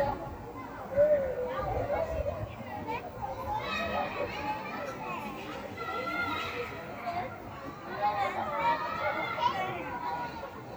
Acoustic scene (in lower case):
residential area